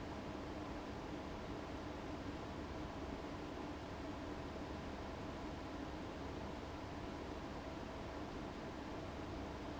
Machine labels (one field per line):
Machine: fan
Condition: abnormal